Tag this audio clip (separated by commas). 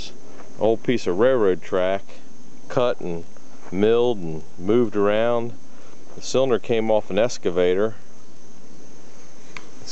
Speech